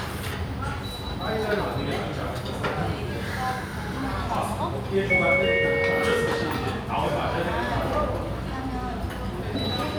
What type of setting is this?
restaurant